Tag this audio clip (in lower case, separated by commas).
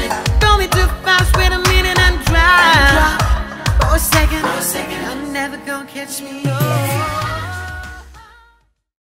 music, echo